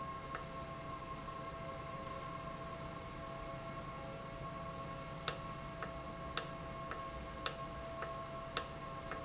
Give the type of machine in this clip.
valve